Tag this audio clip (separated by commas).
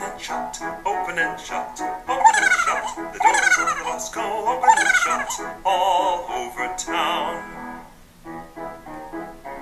Music